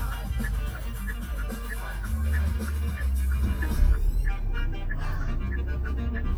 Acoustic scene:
car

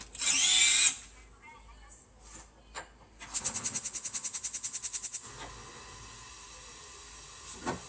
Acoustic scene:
kitchen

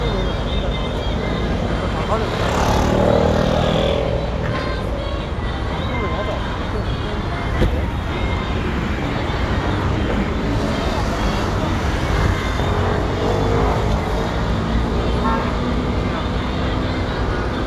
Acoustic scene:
street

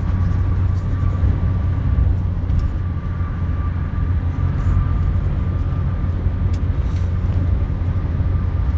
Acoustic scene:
car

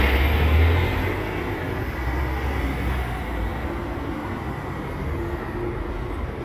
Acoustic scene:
street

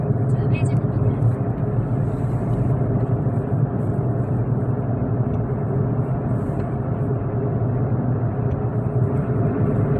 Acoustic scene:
car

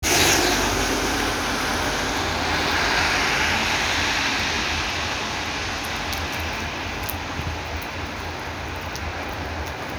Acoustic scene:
street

